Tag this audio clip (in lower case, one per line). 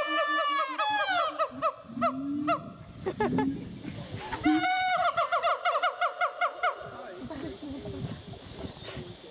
gibbon howling